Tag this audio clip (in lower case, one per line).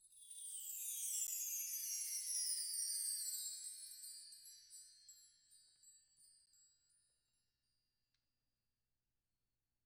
chime
bell
wind chime